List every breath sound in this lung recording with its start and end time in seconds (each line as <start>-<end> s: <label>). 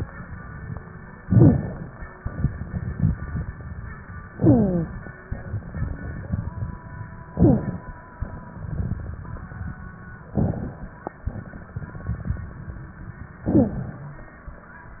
1.27-2.15 s: inhalation
1.27-2.15 s: rhonchi
2.18-4.21 s: crackles
4.33-5.20 s: inhalation
4.33-5.20 s: wheeze
5.29-7.32 s: crackles
7.32-7.88 s: inhalation
7.32-7.88 s: wheeze
8.23-10.26 s: crackles
10.34-10.89 s: inhalation
10.34-10.89 s: crackles
11.25-13.37 s: crackles
13.45-14.15 s: inhalation
13.45-14.15 s: rhonchi